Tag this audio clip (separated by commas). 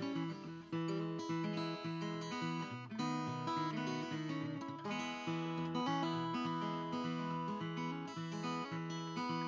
Music